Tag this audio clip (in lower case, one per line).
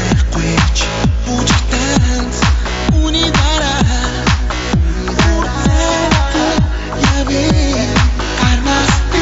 music
pop music